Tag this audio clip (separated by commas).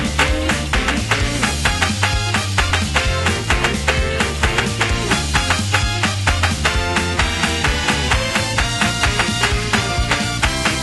Music